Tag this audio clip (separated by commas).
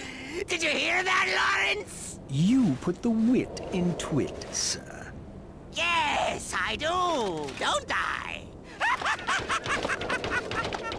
Speech